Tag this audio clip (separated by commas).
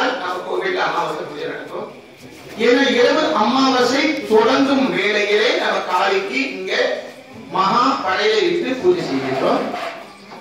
Speech, Narration, Female speech